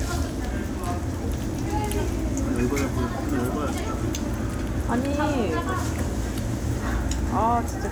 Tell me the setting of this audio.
crowded indoor space